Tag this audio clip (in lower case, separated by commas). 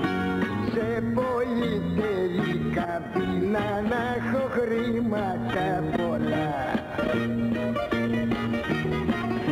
pop music, music, jazz